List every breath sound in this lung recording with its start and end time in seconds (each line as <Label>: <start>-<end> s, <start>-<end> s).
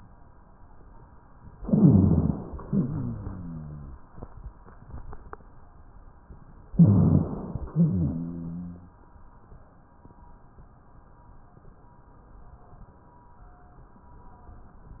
Inhalation: 1.57-2.62 s, 6.74-7.65 s
Exhalation: 2.69-4.00 s, 7.72-9.03 s
Rhonchi: 2.69-4.00 s, 7.72-9.03 s
Crackles: 1.57-2.62 s, 6.74-7.65 s